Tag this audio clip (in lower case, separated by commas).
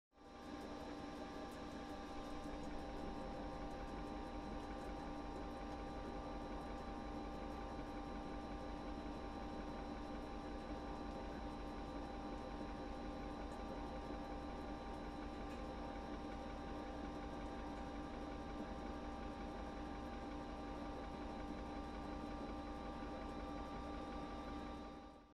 engine